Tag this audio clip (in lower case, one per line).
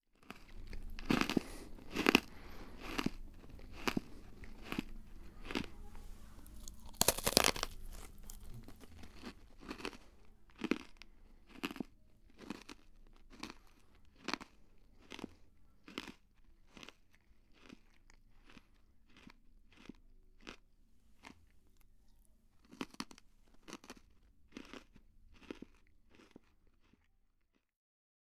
mastication